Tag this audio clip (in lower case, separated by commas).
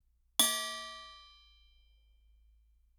bell